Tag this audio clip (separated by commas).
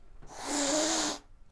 Animal, Domestic animals, Hiss, Cat